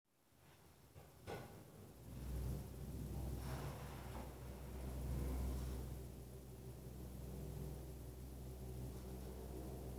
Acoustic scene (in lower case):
elevator